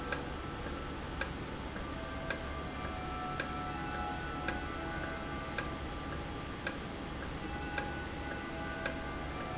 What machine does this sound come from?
valve